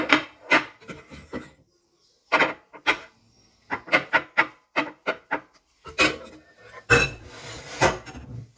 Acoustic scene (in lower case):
kitchen